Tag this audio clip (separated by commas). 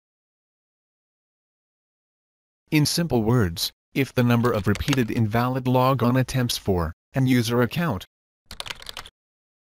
Speech